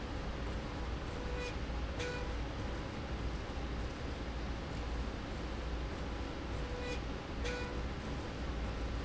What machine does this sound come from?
slide rail